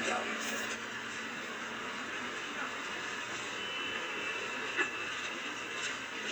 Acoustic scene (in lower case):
bus